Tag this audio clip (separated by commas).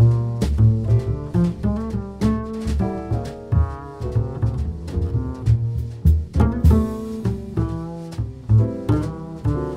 playing double bass